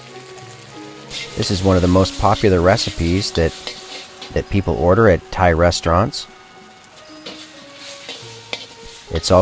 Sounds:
Speech, Music

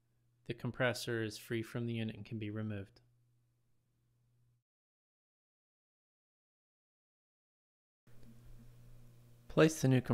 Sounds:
Speech

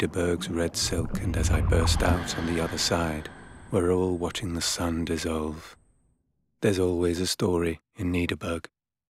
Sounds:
Speech

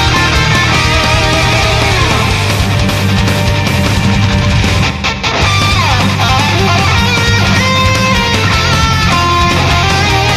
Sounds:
Music

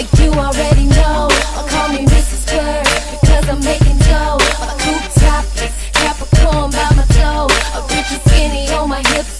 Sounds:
Music

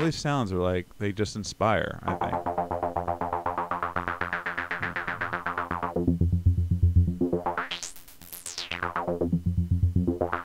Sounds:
Speech, Music

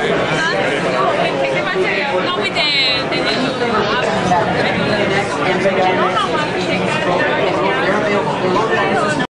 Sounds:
Speech

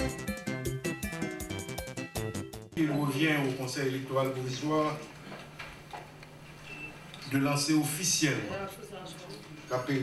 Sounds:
Speech, Music

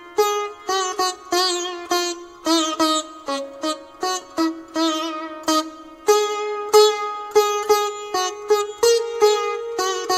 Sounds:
Folk music, Music

